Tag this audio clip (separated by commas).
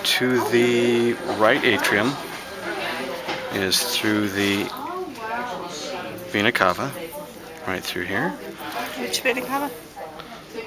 Speech